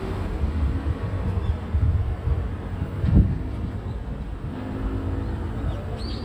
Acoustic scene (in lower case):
street